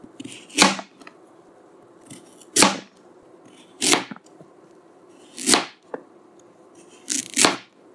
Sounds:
home sounds

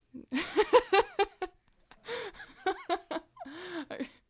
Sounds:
Human voice, Laughter

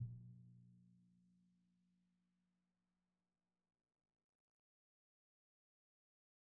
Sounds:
Musical instrument, Drum, Percussion, Music

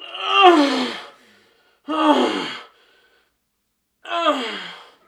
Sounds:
Human voice

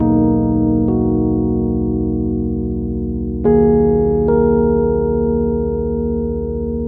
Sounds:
Keyboard (musical), Piano, Music, Musical instrument

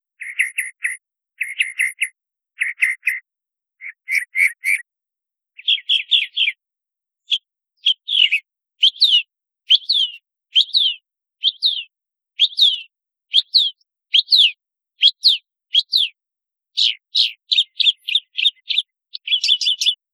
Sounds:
bird song, Bird, Animal, Wild animals

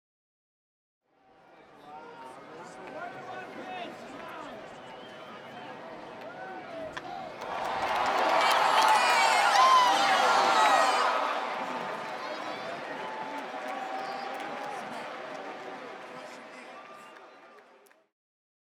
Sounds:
Human group actions, Crowd, Cheering

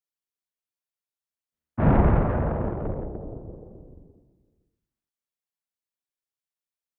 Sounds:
Thunder, Thunderstorm

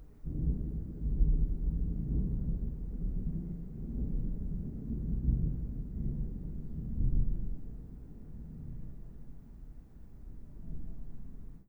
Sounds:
Thunderstorm

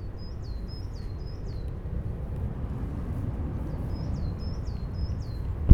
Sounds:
Wild animals, bird call, Bird, Animal

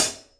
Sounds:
Musical instrument, Hi-hat, Music, Percussion, Cymbal

